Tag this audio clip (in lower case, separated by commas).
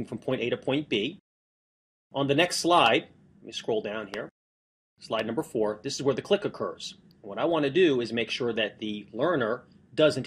speech